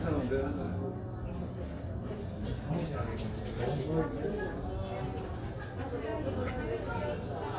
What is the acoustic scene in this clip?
crowded indoor space